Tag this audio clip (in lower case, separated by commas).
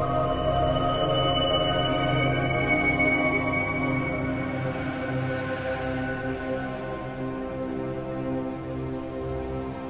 soundtrack music, music